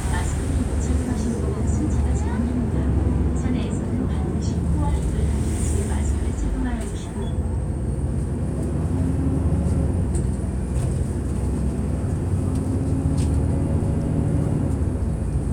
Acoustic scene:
bus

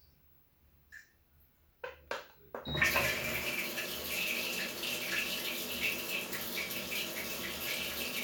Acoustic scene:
restroom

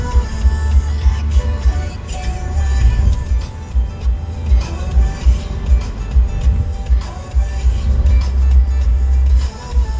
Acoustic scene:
car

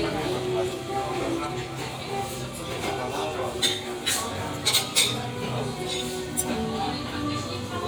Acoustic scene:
restaurant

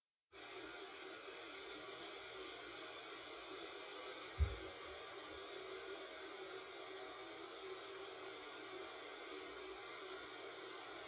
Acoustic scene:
subway train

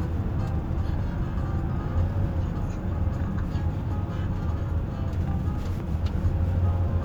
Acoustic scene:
car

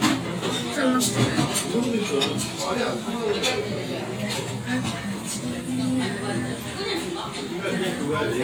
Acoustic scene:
crowded indoor space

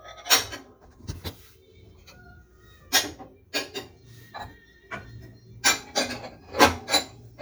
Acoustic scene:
kitchen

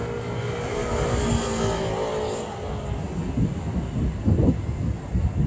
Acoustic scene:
street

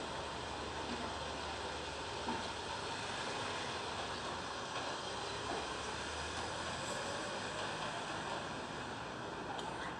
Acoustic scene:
residential area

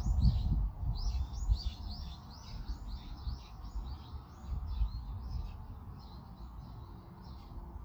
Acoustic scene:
park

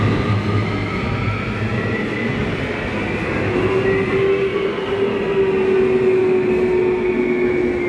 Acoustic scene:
subway station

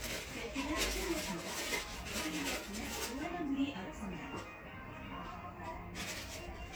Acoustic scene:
crowded indoor space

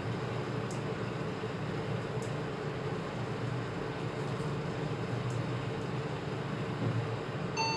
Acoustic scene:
elevator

